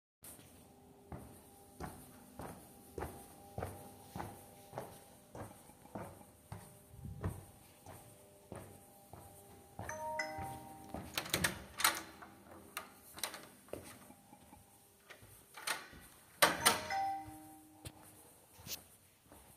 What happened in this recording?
Walking In the hallway and then the phone rings while I am walking and then I open the door and another notification comes in